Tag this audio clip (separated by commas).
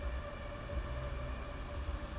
Wind